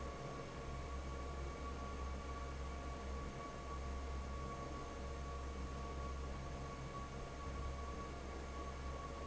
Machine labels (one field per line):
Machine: fan